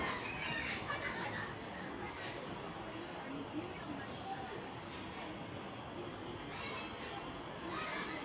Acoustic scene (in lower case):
residential area